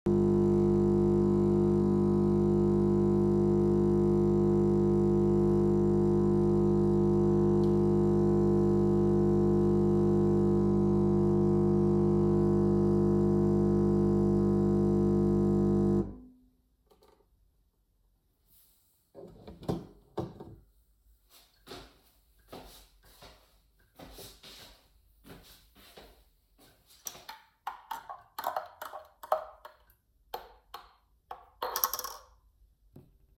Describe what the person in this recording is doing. I made me some coffee, took it to the counter and stirred it.